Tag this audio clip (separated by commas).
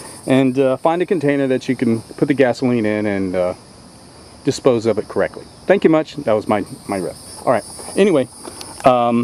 Insect, Cricket